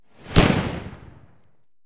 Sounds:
Boom, Explosion

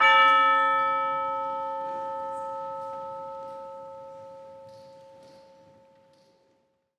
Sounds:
Musical instrument, Percussion, Music

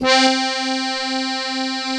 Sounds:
Musical instrument, Accordion, Music

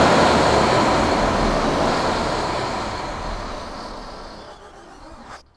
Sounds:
Engine

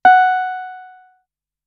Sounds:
Music, Keyboard (musical), Piano, Musical instrument

